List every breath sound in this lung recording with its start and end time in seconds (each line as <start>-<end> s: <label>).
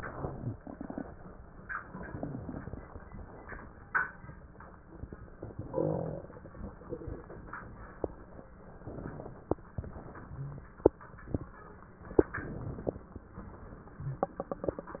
0.00-1.03 s: inhalation
1.75-3.73 s: exhalation
8.82-9.67 s: inhalation
9.71-10.66 s: exhalation
12.22-13.28 s: inhalation
13.38-15.00 s: exhalation